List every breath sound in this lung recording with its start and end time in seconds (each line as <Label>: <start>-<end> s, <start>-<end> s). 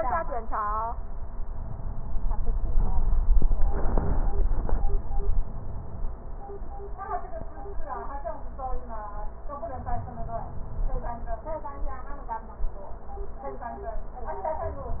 Inhalation: 9.59-11.34 s